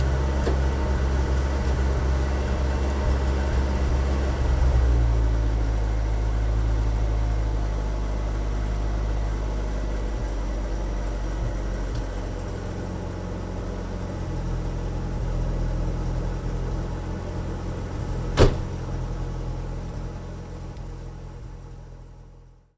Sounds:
engine, idling

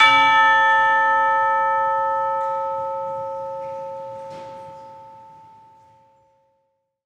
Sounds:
musical instrument, music, percussion

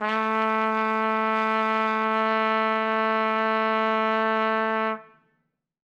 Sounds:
trumpet, brass instrument, music, musical instrument

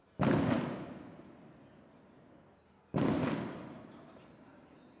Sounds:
fireworks, explosion

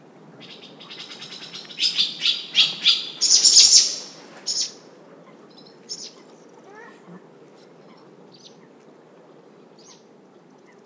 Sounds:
bird call, wild animals, tweet, bird, animal

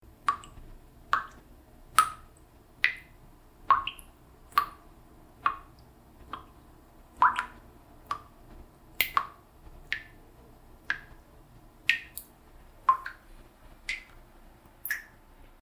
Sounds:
liquid, drip

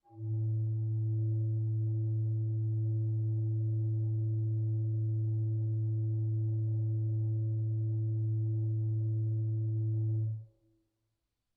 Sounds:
organ, musical instrument, music, keyboard (musical)

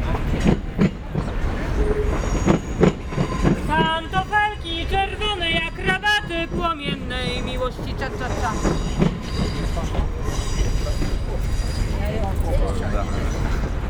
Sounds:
train, rail transport, vehicle

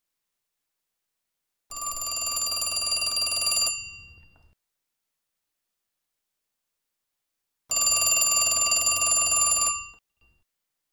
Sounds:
alarm, telephone

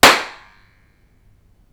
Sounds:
hands, clapping

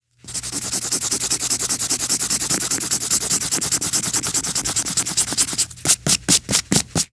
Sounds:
domestic sounds, writing

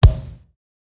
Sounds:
thump

